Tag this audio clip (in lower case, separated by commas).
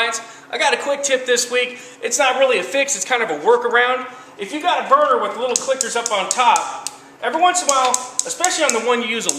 speech